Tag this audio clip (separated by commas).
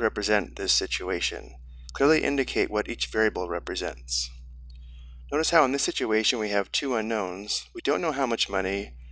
Speech